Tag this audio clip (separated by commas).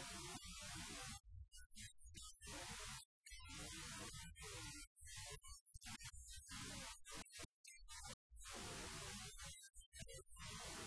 Speech